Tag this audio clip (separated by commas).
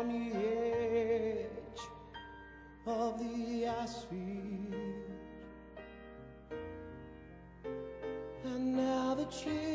Piano, Music